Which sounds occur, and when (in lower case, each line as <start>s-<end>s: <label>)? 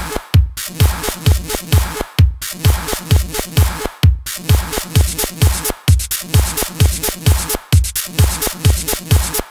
0.0s-9.5s: music